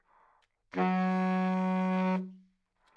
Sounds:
Musical instrument, Music, Wind instrument

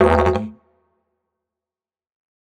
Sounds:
Musical instrument, Music

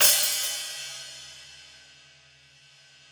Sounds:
Musical instrument, Cymbal, Music, Percussion, Hi-hat

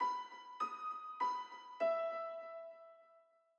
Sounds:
Keyboard (musical), Musical instrument, Piano, Music

